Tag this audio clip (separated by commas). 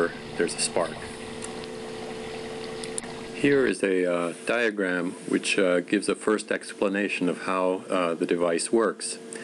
Speech